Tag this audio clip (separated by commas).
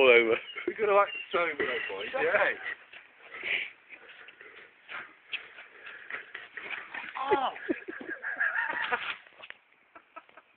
Speech